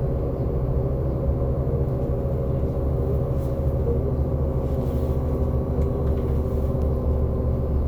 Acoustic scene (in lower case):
bus